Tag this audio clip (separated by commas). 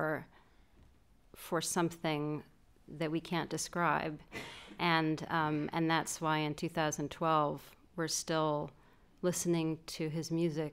Speech